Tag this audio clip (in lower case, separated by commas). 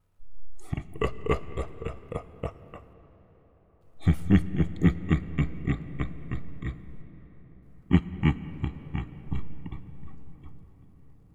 laughter, human voice